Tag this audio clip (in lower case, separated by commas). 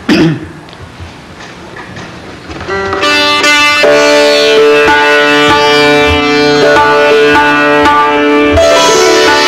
sitar, music, musical instrument, plucked string instrument